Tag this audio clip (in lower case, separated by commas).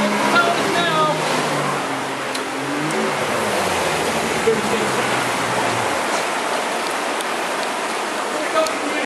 boat, motorboat, speech, vehicle